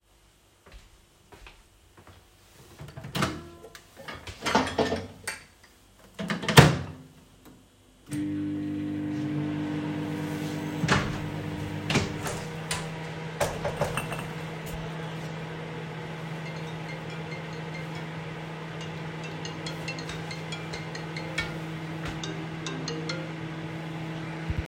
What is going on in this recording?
I walked towards my microwave, opened and closed it, started it and then opened the window. I got a phone call.